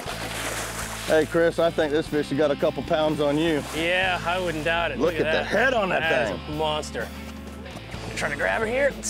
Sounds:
speech, music

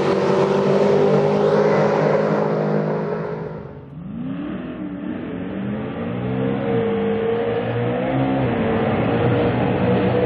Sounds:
auto racing, car, vehicle, car passing by

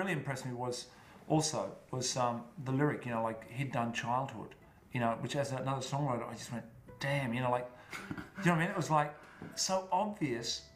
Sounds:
speech

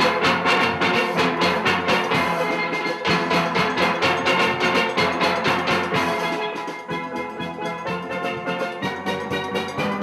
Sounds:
music, steelpan

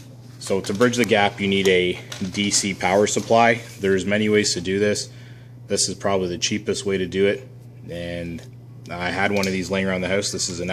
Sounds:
speech

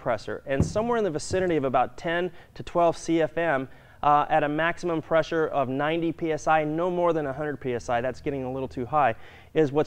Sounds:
speech

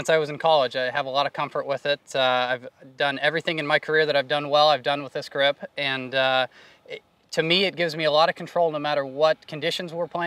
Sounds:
speech

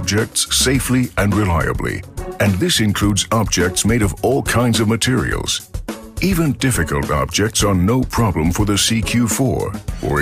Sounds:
speech, music

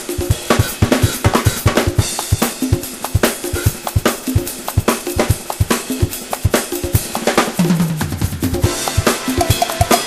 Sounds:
cymbal, music, snare drum

